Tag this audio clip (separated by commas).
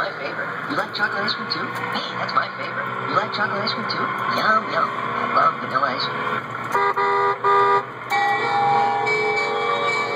Music, Speech, Vehicle